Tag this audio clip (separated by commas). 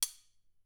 Domestic sounds, Cutlery